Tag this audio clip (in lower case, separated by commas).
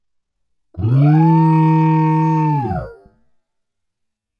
alarm